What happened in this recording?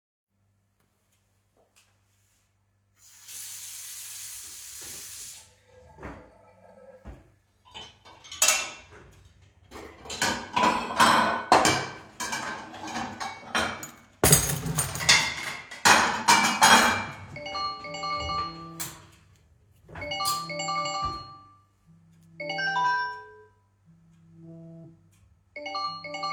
I walked towards the faucet, turned it on, and water started running. After a moment I turned the faucet off. I opened two drawers and took cutlery and dishes out of the open dishwasher and placed them in separate drawers. Finally, my phone rang. I closed the drawers.